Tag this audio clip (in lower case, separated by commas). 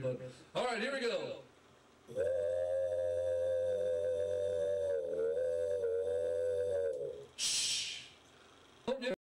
speech